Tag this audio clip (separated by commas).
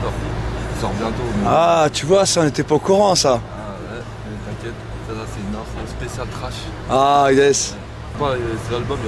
Speech